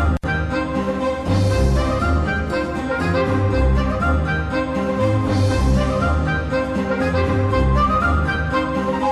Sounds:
Music, Background music

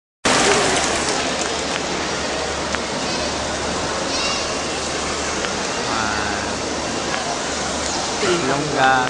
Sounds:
Hubbub, Speech

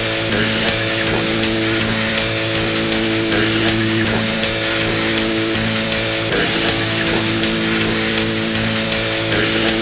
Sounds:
Music, Ska

